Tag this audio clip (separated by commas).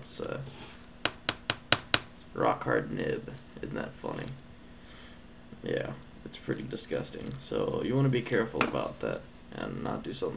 Speech